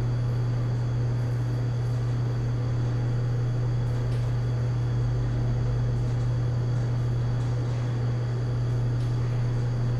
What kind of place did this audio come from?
elevator